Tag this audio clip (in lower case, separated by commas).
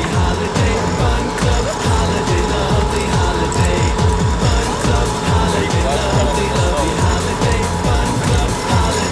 music, speech